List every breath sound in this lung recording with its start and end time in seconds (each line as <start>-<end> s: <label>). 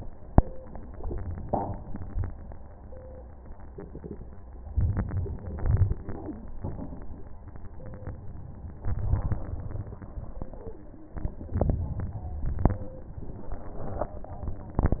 4.72-5.55 s: inhalation
5.62-6.55 s: exhalation
5.62-6.55 s: crackles
8.81-9.85 s: inhalation
9.88-10.87 s: exhalation